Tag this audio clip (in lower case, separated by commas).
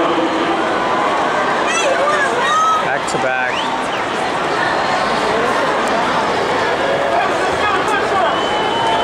speech